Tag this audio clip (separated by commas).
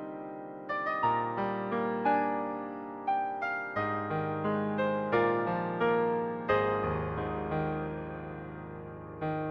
Music, Piano